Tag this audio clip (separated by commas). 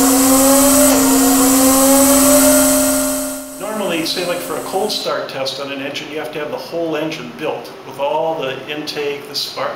Speech, inside a small room